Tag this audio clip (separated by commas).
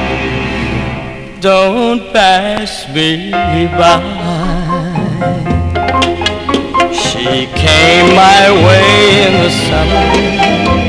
Bowed string instrument